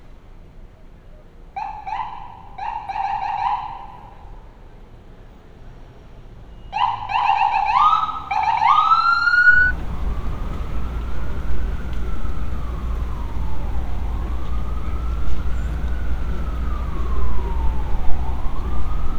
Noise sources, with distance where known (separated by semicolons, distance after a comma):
siren